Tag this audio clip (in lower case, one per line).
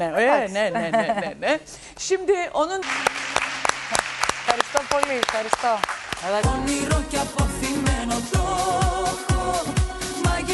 speech
music